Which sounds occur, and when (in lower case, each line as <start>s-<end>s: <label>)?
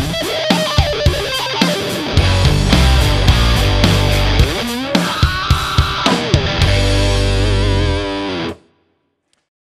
0.0s-8.5s: music
0.0s-9.3s: background noise
9.2s-9.5s: generic impact sounds